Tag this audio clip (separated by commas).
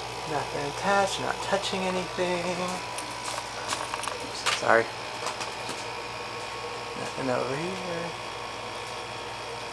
Air conditioning, Speech